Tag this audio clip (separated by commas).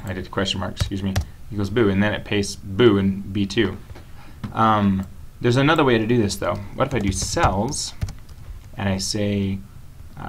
Speech